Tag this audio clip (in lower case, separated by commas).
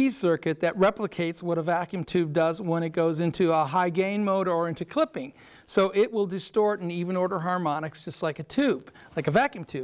speech